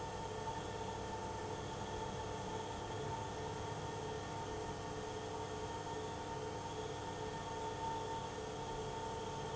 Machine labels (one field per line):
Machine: pump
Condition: abnormal